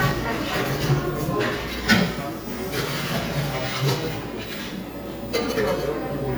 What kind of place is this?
cafe